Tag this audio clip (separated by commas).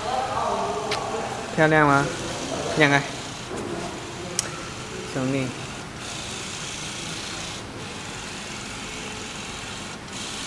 Speech, Printer